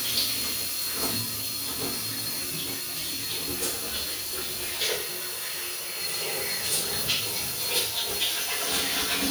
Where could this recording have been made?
in a restroom